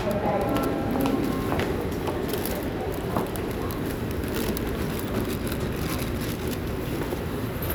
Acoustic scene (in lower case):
subway station